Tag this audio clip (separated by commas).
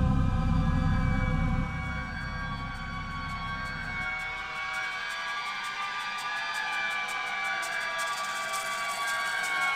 Music